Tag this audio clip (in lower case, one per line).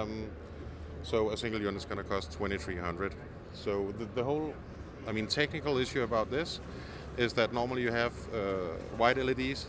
speech